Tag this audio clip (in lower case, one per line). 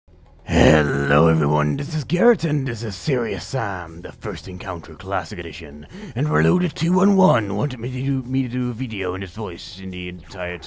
speech